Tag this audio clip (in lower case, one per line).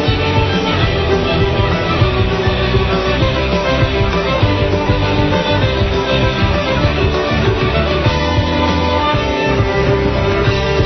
music